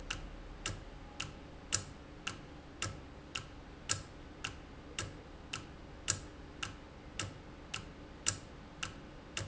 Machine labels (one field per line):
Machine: valve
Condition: normal